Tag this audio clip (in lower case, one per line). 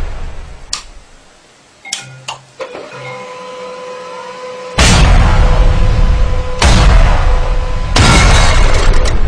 slap